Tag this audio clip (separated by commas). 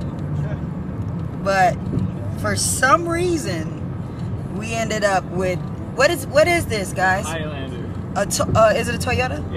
Motor vehicle (road), Vehicle, Speech, Car